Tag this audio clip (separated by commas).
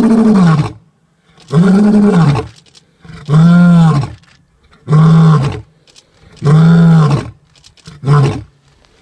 lions roaring